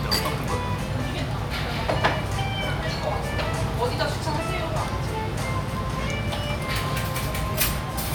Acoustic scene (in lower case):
restaurant